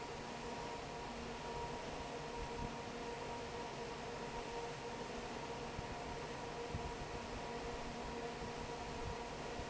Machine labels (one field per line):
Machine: fan